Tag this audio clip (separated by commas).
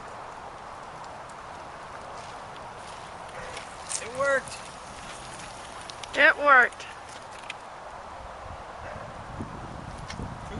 Vehicle, Speech